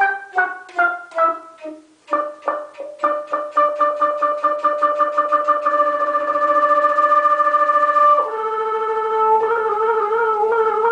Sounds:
woodwind instrument, flute

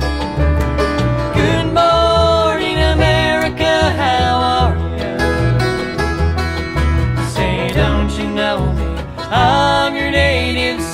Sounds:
musical instrument, violin, music, country, bowed string instrument

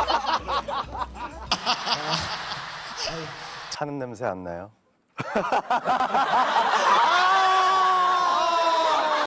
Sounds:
speech, chuckle, snicker, people sniggering

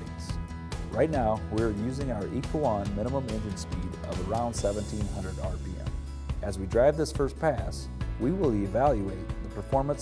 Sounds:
speech, music

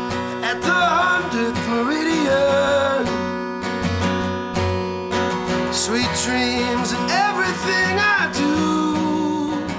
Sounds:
music

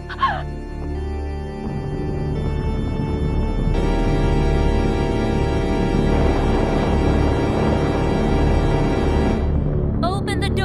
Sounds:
music

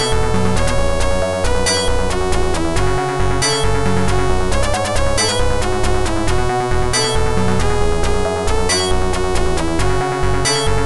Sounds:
music

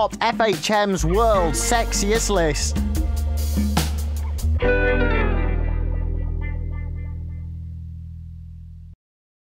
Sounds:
speech, music

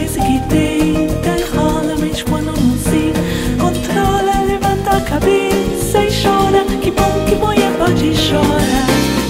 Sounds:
guitar, music, happy music, musical instrument, singing

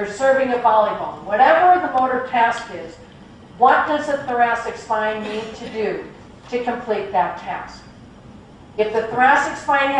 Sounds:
woman speaking, speech

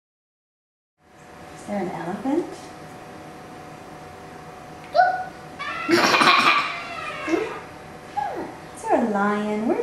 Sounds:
speech

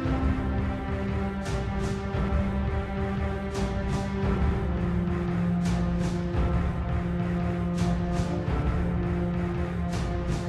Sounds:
music

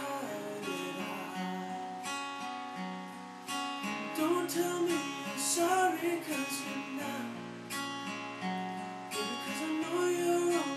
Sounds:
music

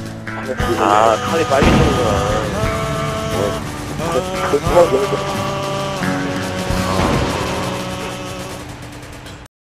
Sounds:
speech, male singing, music

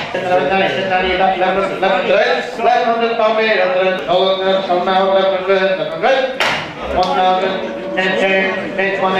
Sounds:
speech

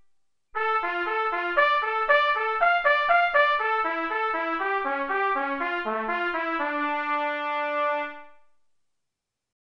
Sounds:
trumpet, musical instrument, music

